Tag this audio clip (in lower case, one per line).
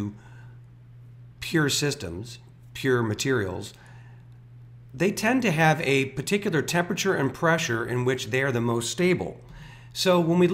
speech